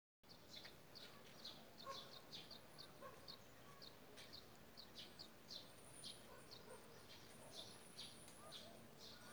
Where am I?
in a park